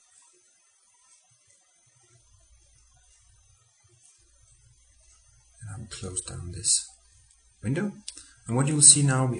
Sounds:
Speech

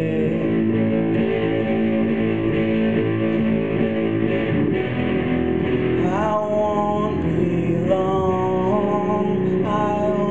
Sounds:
Music, Singing, Electric guitar

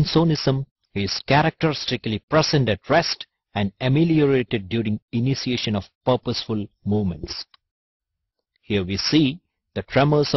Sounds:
Speech

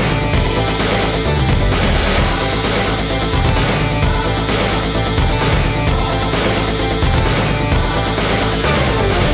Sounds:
Music

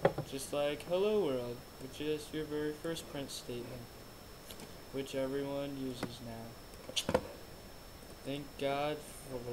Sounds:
Speech

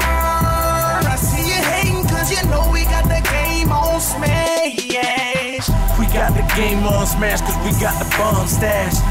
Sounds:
Music

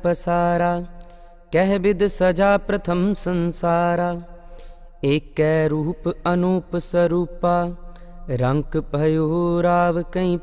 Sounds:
Mantra

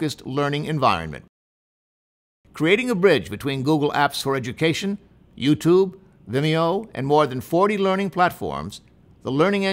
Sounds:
Speech

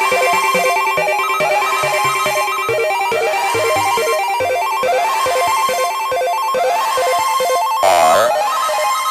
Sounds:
Music, Dubstep

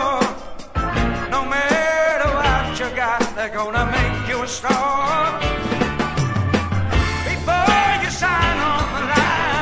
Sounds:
Music

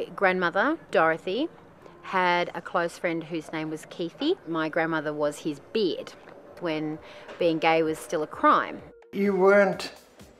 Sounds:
Speech

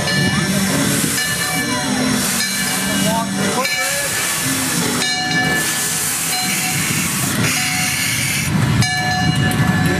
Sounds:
Rail transport, train wagon, Train

